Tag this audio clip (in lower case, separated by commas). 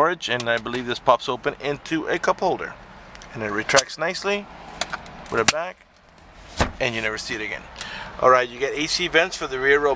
speech, vehicle